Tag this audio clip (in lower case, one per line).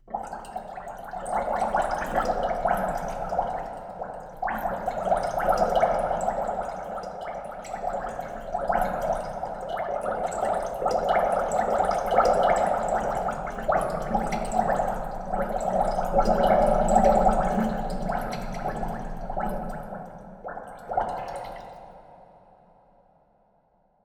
liquid